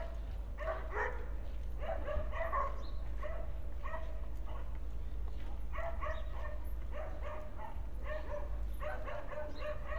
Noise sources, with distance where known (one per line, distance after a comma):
dog barking or whining